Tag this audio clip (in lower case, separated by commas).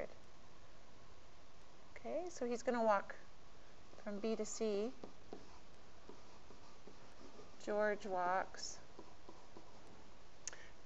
speech